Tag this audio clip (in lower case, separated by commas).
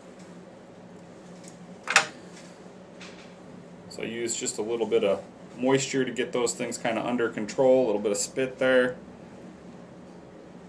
speech